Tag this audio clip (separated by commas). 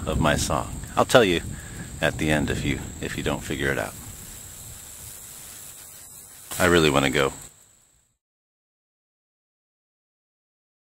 Music, Ukulele